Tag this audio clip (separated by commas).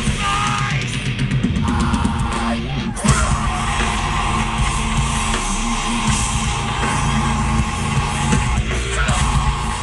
Music